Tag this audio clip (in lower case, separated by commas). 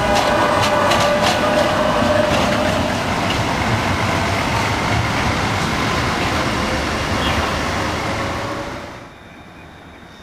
roadway noise, vehicle, train